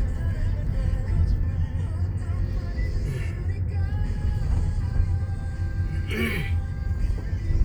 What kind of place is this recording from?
car